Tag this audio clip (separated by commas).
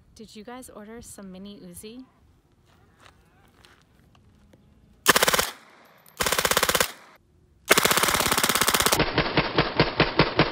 machine gun shooting